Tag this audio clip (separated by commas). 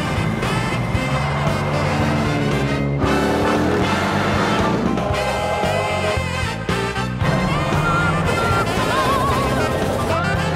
Snare drum, Drum, Rimshot, Percussion, Drum kit, Bass drum